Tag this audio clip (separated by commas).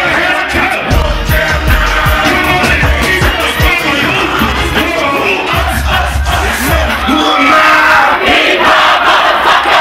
Speech, Music, inside a public space